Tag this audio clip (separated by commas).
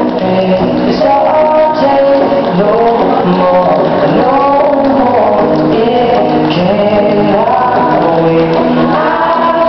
Music, Tap